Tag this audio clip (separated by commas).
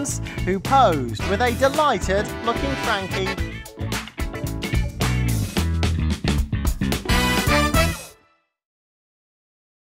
Speech, Music